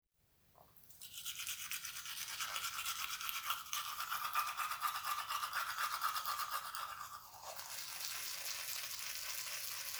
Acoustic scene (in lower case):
restroom